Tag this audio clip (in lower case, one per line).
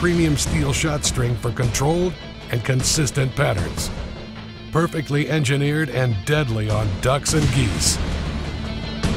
music
speech